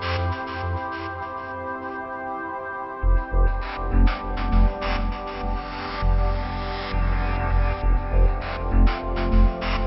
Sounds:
Music, Musical instrument, Electronica

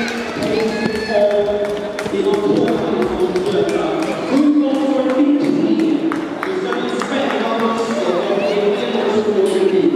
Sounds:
Speech, Run

